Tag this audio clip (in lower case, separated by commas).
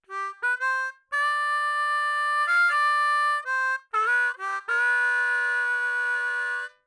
harmonica, music, musical instrument